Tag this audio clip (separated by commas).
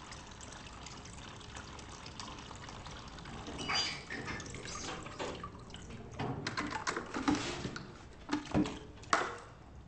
Drip, Fill (with liquid), inside a large room or hall, Liquid